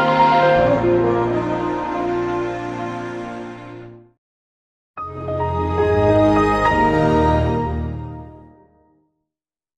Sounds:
sound effect

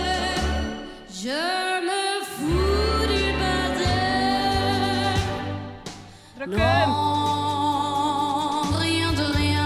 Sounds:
child singing

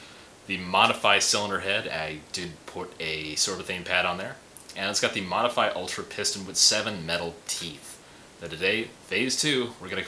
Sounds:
speech

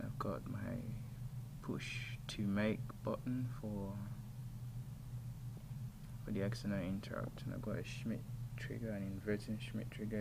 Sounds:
speech

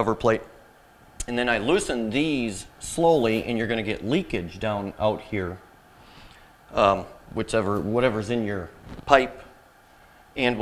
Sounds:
speech

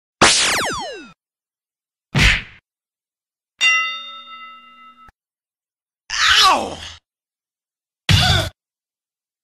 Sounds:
sound effect

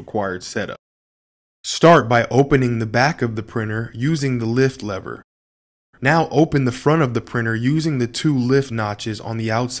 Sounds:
speech

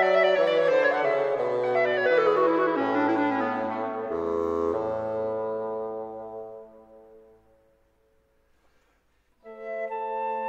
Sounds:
clarinet

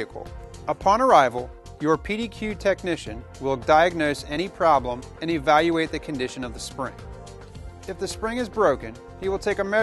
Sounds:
music, speech

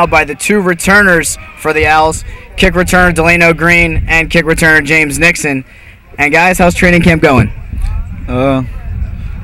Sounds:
speech

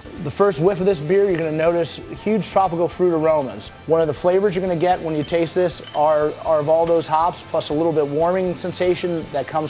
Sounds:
music, speech

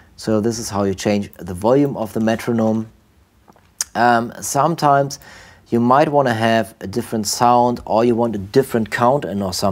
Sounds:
speech

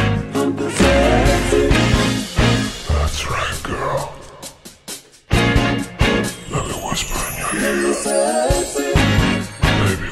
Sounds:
singing, music

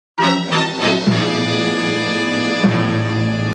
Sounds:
music

